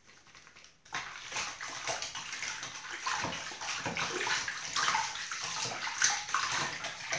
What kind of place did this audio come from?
restroom